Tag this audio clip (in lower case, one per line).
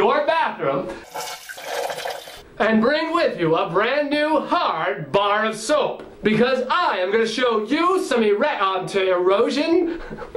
inside a small room
toilet flush
speech